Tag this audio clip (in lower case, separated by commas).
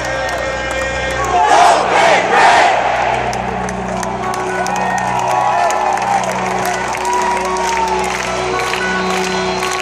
music, speech